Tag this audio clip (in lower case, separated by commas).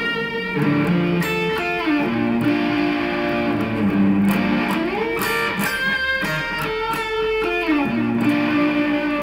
plucked string instrument, music, strum, acoustic guitar, musical instrument, guitar